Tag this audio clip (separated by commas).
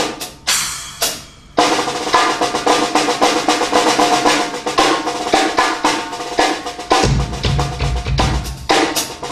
Cymbal, Music, Hi-hat, playing drum kit, Drum kit, Musical instrument, Drum, Bass drum